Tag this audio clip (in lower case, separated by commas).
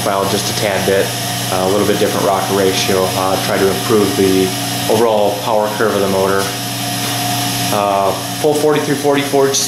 speech, heavy engine (low frequency)